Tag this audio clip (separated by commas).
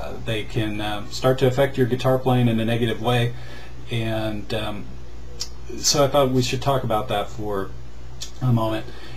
Speech